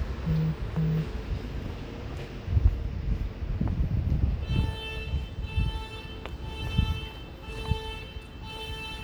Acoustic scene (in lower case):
residential area